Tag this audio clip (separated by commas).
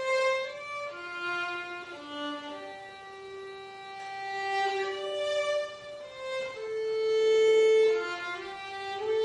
Music, Violin